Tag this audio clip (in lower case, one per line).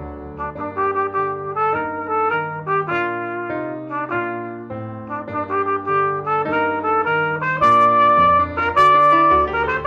trumpet